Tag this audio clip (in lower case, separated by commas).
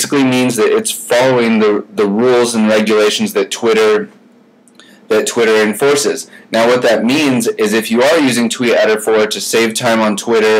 speech